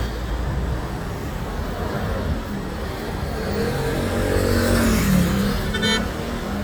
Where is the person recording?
on a street